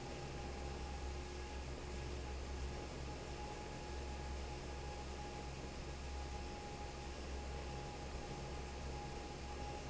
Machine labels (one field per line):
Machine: fan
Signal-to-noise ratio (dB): 6 dB